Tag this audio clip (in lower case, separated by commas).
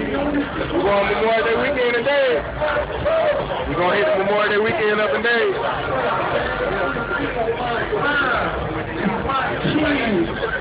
speech, music